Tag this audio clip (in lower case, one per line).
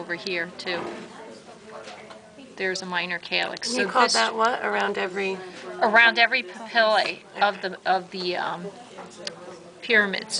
speech